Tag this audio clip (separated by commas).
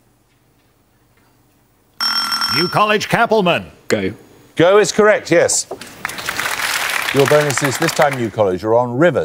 Buzzer, Speech